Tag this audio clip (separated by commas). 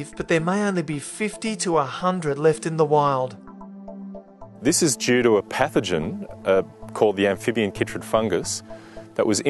Music, Speech